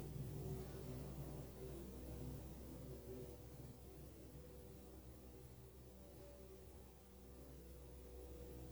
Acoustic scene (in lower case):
elevator